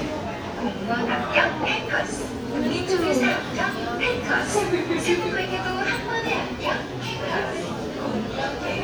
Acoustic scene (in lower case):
subway station